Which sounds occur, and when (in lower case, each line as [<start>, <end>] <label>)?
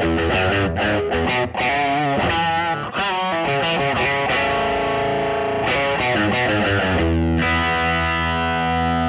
[0.00, 9.05] effects unit
[0.00, 9.05] music